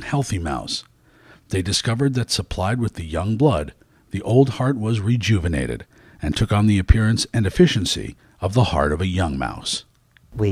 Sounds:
Speech

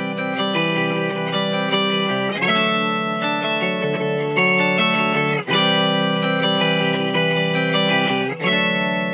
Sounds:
Music, Musical instrument, Effects unit, Guitar, Distortion, Plucked string instrument, Electric guitar

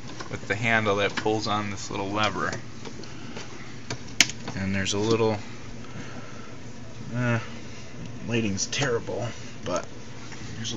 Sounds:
Speech

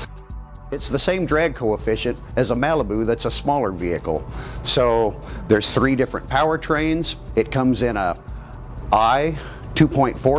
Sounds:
Speech

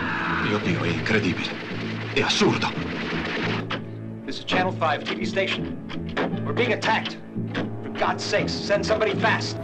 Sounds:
Speech, Music

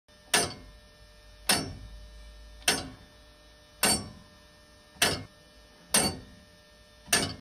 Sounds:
Tick-tock

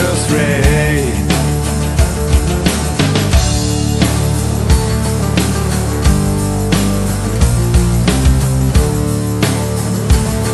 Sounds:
Music

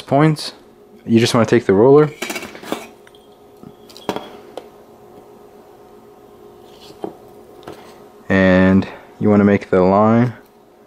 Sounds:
inside a small room, Speech

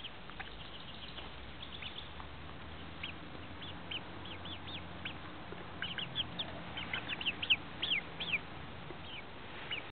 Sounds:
Bird

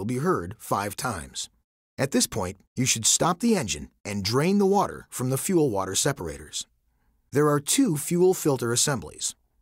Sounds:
Speech

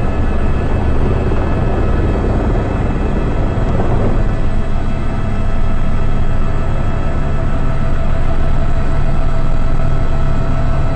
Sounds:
Vehicle, Helicopter, Aircraft

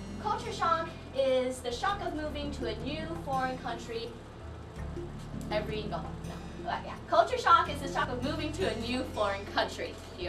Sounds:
Female speech, Music, Speech, Narration

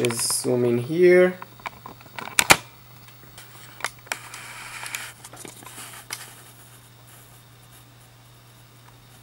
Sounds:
inside a small room, Speech

